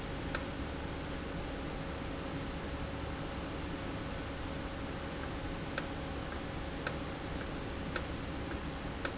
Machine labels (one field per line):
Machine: valve